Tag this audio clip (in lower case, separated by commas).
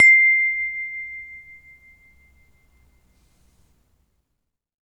chime, bell, wind chime